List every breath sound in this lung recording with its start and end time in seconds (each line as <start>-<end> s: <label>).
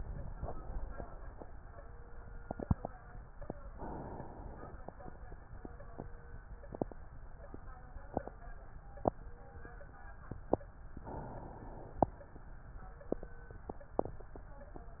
0.00-1.43 s: inhalation
3.73-5.16 s: inhalation
10.95-12.38 s: inhalation